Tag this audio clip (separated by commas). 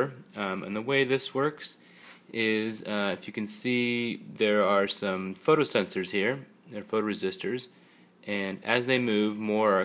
Speech